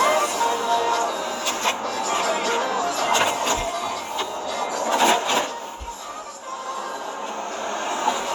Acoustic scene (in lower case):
car